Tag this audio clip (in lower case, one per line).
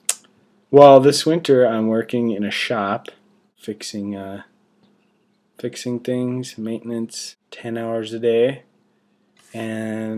speech